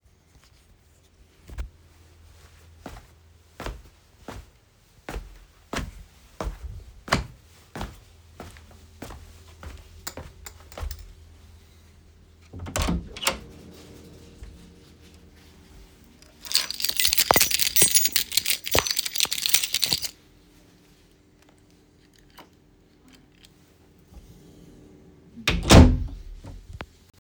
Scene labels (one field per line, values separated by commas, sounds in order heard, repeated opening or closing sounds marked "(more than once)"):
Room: bedroom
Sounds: footsteps, door (more than once), keys